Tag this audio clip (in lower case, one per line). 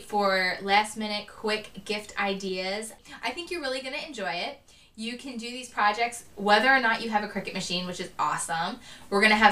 speech